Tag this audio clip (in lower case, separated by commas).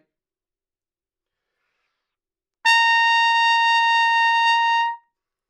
musical instrument, trumpet, music, brass instrument